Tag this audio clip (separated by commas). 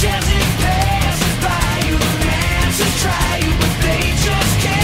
Music